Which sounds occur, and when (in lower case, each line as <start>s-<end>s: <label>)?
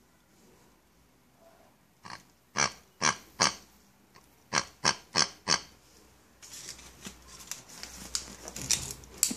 0.0s-9.3s: background noise
2.0s-2.2s: oink
2.5s-2.8s: oink
2.9s-3.2s: oink
3.3s-3.6s: oink
4.1s-4.2s: oink
4.5s-4.6s: oink
4.8s-5.0s: oink
5.1s-5.3s: oink
5.4s-5.6s: oink
6.4s-9.3s: surface contact
8.1s-8.2s: generic impact sounds
8.6s-8.8s: generic impact sounds
9.2s-9.3s: generic impact sounds